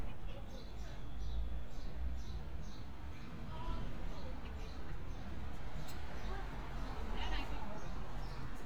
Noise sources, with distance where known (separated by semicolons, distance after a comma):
person or small group talking, far